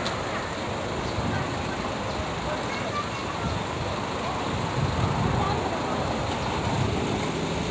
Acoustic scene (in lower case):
street